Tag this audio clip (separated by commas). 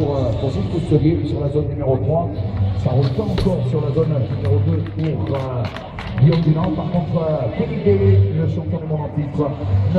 Music, Speech